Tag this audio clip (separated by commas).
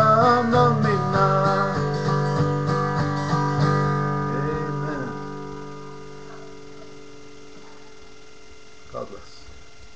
Musical instrument, Plucked string instrument, Music, Speech, Guitar, Singing